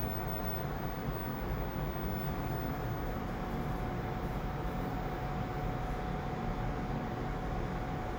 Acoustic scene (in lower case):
elevator